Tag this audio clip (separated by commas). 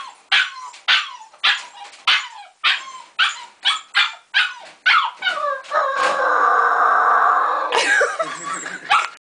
Animal, Dog, Domestic animals